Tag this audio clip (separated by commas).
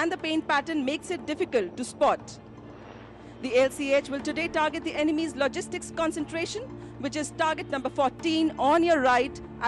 Vehicle, Speech, Music, Helicopter